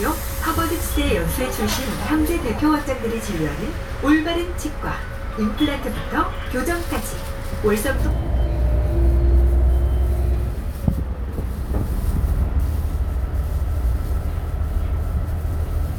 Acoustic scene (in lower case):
bus